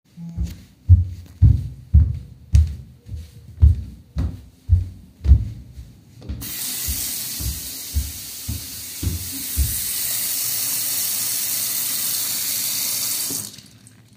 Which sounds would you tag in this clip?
phone ringing, footsteps, running water